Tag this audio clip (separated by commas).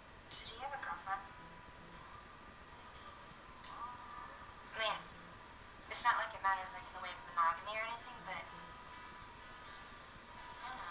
Music, Speech